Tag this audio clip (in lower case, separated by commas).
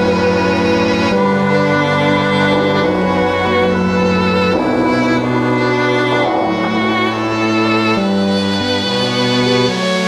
music, violin, bowed string instrument